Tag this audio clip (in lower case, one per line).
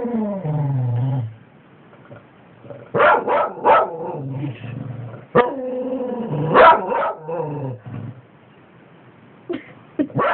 domestic animals
dog
dog barking
animal
bark